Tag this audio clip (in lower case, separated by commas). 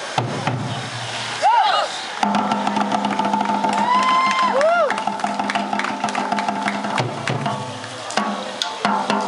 outside, urban or man-made, music